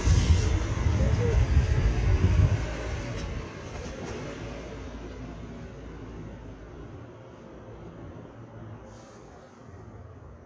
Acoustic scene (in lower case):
residential area